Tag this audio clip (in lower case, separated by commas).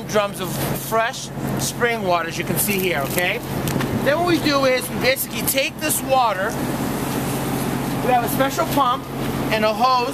speech, vehicle